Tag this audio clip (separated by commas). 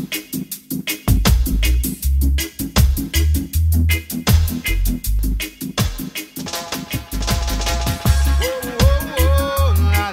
Music, Reggae, Music of Africa